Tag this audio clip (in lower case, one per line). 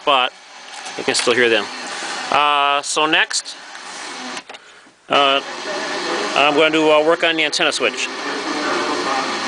speech
radio
music